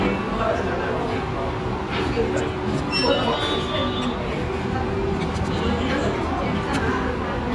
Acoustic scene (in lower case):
restaurant